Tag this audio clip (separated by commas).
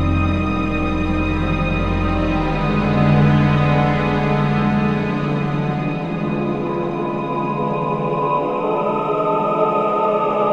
Music, inside a large room or hall